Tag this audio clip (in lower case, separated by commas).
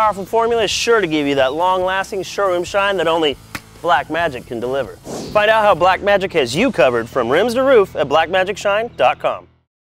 speech